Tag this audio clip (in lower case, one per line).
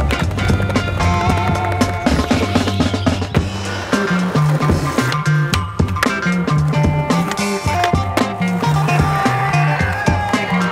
music